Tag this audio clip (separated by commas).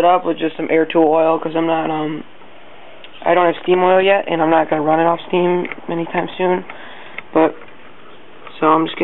Speech